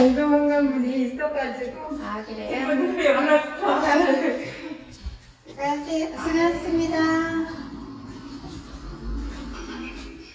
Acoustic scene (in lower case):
elevator